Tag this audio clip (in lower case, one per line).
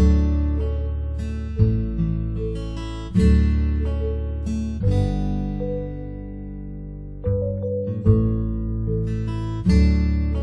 horse neighing